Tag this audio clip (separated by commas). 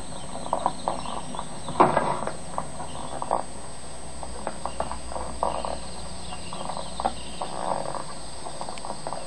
Bird, outside, rural or natural